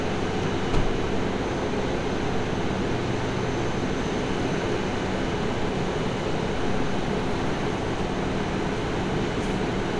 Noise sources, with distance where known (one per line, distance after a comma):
large-sounding engine, near